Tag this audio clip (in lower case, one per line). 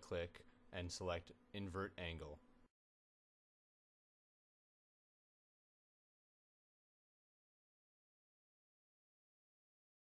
speech